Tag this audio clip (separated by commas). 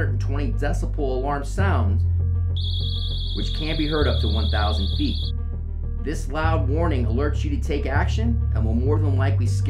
Speech, Music